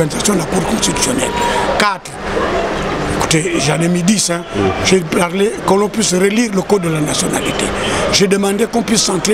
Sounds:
Speech

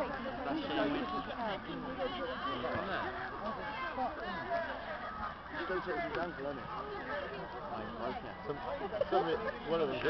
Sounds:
Speech

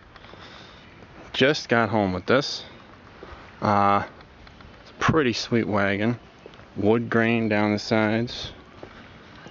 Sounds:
Speech

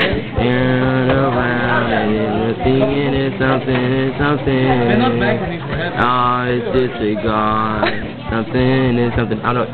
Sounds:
Speech

